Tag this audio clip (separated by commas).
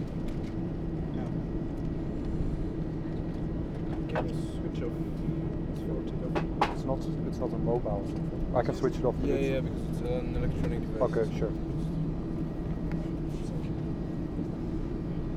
Aircraft, Vehicle, Fixed-wing aircraft